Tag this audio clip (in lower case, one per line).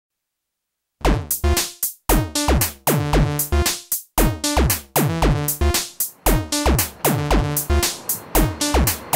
drum machine
music